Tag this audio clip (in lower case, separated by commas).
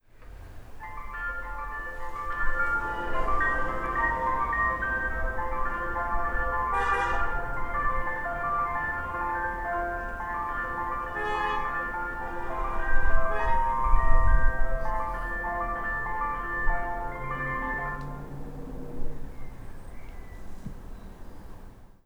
honking, motor vehicle (road), car, alarm, vehicle